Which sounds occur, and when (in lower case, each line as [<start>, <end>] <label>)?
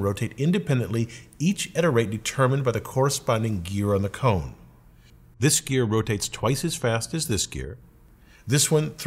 [0.00, 1.04] man speaking
[0.00, 9.05] mechanisms
[1.06, 1.31] breathing
[1.35, 4.46] man speaking
[4.93, 5.19] breathing
[5.43, 7.71] man speaking
[8.17, 8.46] breathing
[8.46, 9.05] man speaking